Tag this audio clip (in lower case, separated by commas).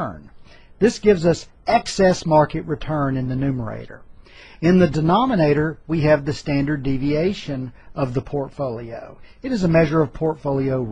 speech